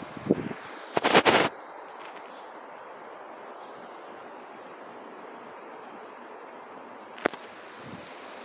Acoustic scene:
residential area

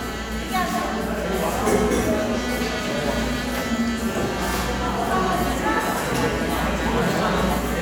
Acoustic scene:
cafe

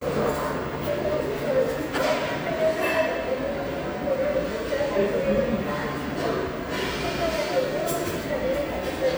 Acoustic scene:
restaurant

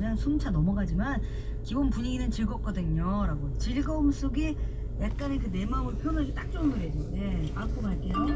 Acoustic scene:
car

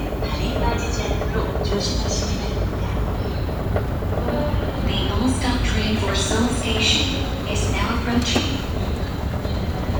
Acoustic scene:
subway station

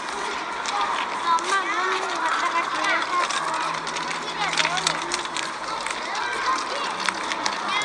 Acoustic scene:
park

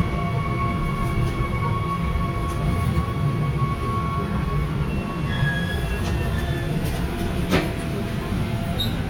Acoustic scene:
subway train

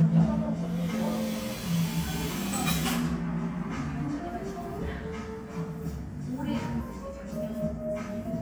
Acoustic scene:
cafe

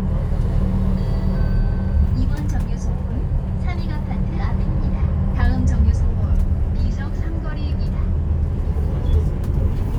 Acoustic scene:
bus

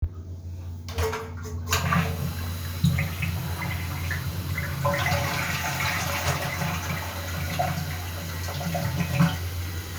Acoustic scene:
restroom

